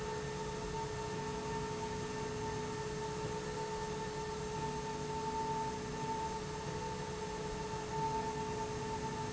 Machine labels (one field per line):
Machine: slide rail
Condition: normal